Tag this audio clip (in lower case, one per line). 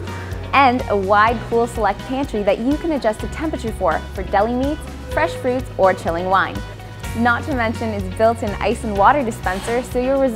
music
speech